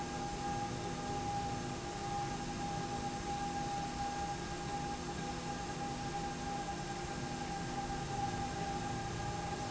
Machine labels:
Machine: slide rail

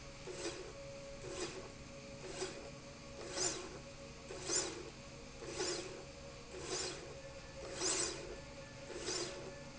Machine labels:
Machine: slide rail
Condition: normal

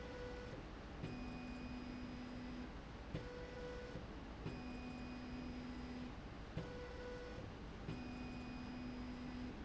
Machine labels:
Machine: slide rail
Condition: normal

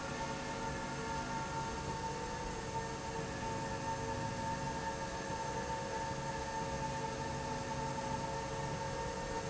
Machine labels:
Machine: slide rail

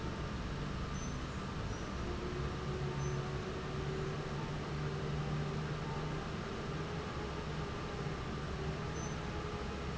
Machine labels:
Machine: fan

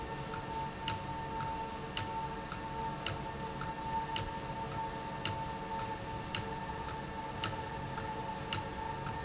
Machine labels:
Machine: valve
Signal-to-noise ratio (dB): -6 dB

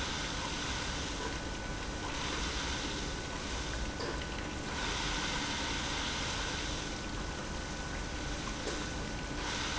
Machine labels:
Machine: pump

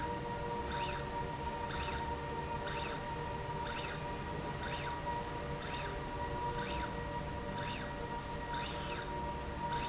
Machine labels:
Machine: slide rail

